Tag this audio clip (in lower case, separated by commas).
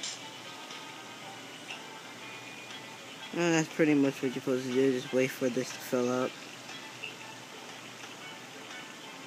music, speech